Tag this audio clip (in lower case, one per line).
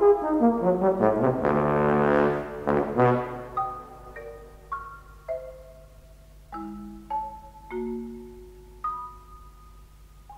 brass instrument